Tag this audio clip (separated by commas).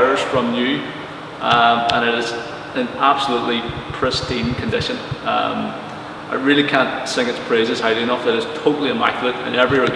Speech